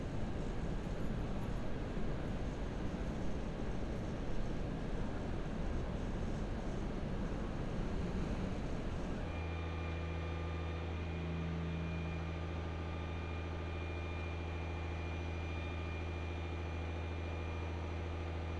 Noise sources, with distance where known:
engine of unclear size

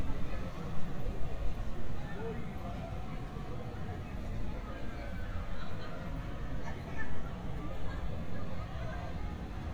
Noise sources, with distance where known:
person or small group talking

